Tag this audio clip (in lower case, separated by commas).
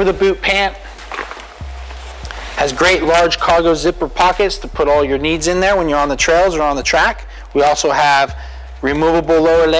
speech, music